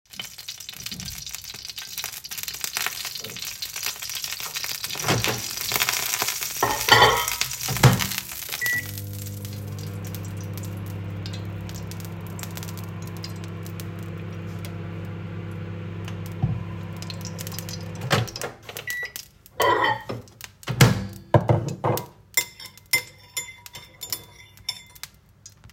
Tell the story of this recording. I fried some oil in the pan and stirred it with a spoon. I then put a plate in the microwave and let it heat up. I started eating.